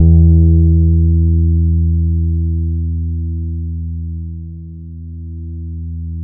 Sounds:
Plucked string instrument, Bass guitar, Guitar, Musical instrument, Music

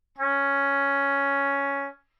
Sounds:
Music, Musical instrument, Wind instrument

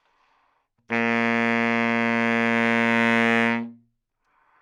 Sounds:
Musical instrument, Music, woodwind instrument

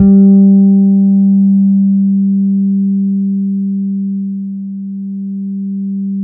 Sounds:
Guitar, Music, Musical instrument, Bass guitar, Plucked string instrument

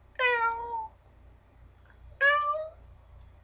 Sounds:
Cat, Domestic animals, Animal

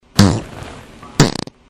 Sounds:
Fart

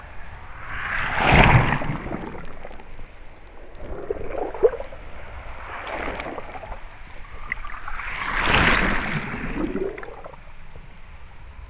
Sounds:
Ocean, Waves, Water

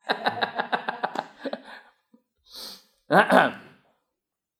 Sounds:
Laughter, Human voice

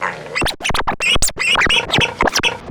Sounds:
Music, Musical instrument, Scratching (performance technique)

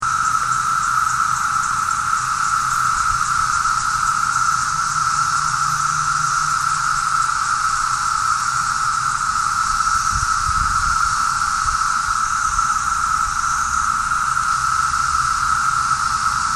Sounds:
Wild animals, Insect, Animal

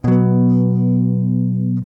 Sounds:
Music, Electric guitar, Strum, Plucked string instrument, Musical instrument, Guitar

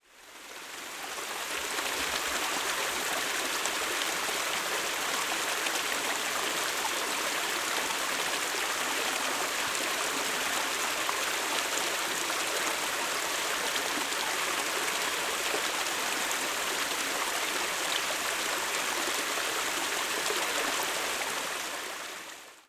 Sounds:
Water, Stream

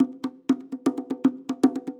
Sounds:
Musical instrument, Percussion, Drum, Music

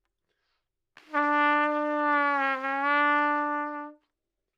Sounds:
Musical instrument, Trumpet, Music, Brass instrument

